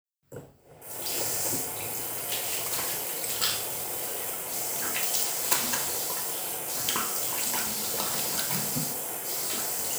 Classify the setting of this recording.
restroom